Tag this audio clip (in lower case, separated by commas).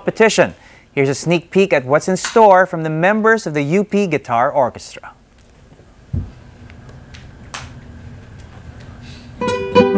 musical instrument, strum, guitar, music, plucked string instrument, acoustic guitar, speech